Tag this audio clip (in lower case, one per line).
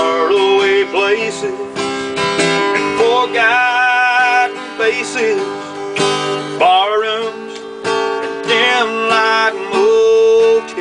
plucked string instrument
musical instrument
guitar
music
strum